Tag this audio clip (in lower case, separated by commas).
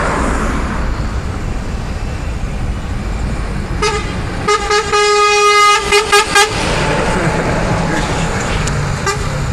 truck, toot, vehicle horn, vehicle, air horn